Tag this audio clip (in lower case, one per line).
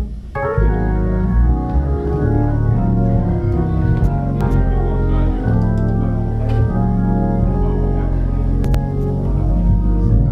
playing hammond organ
speech
musical instrument
organ
hammond organ
keyboard (musical)
music